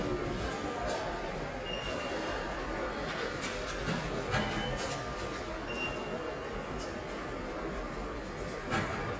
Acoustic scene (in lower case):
subway station